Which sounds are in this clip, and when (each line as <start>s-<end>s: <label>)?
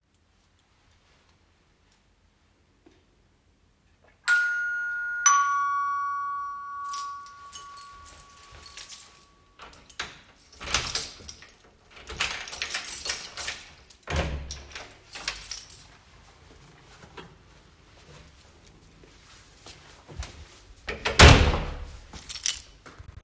4.2s-6.8s: bell ringing
6.8s-9.1s: keys
9.6s-10.2s: keys
10.6s-11.5s: keys
12.0s-13.7s: keys
14.0s-14.9s: door
15.1s-15.9s: keys
16.1s-20.8s: footsteps
20.9s-22.0s: door
22.1s-22.7s: keys